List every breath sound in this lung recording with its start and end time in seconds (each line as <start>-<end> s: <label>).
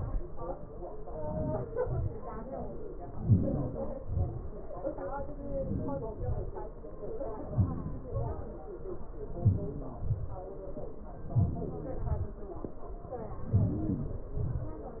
1.15-1.65 s: inhalation
1.85-2.23 s: exhalation
3.23-3.78 s: inhalation
4.14-4.46 s: exhalation
5.54-6.15 s: inhalation
6.26-6.55 s: exhalation
7.57-8.10 s: inhalation
8.15-8.48 s: exhalation
9.45-9.89 s: inhalation
10.11-10.52 s: exhalation
11.40-11.92 s: inhalation
12.09-12.43 s: exhalation
13.57-14.32 s: inhalation
14.44-14.85 s: exhalation